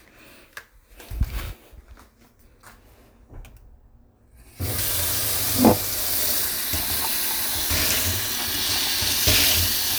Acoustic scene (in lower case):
kitchen